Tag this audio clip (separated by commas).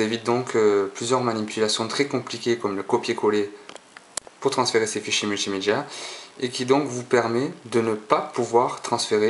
Speech